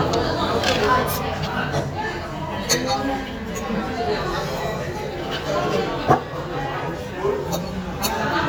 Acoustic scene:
crowded indoor space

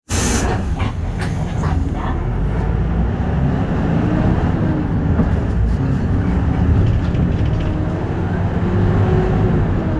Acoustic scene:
bus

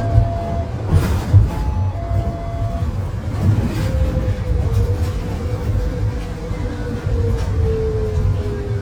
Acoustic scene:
bus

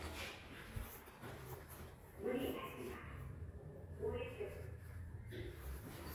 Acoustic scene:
elevator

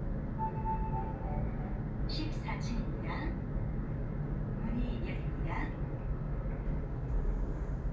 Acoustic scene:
elevator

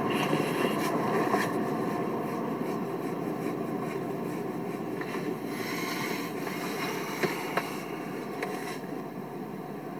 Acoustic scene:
car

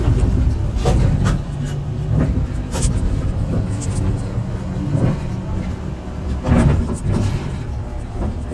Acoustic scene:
bus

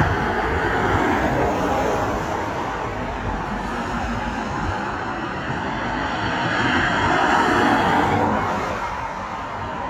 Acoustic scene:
street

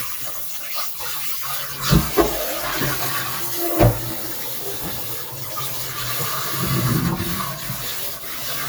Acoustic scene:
kitchen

